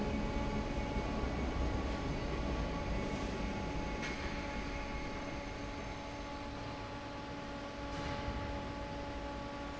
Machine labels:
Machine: fan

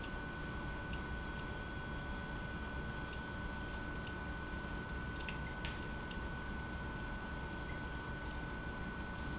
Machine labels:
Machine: pump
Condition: abnormal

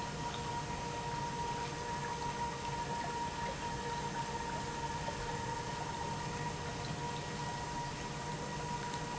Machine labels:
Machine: pump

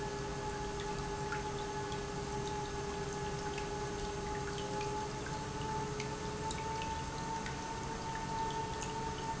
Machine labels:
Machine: pump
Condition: normal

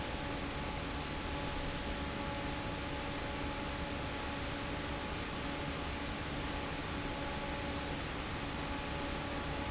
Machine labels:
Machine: fan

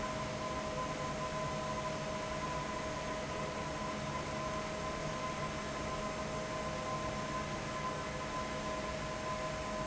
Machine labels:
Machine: fan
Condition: abnormal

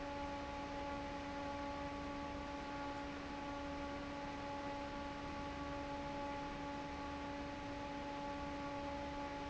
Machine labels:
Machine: fan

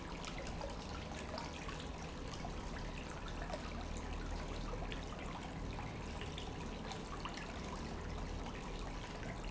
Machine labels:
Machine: pump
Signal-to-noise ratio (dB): 0 dB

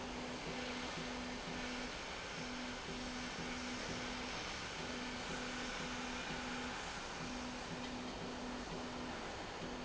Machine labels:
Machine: slide rail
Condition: normal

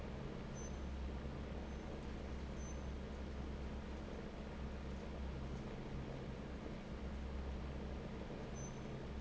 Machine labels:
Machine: fan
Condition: normal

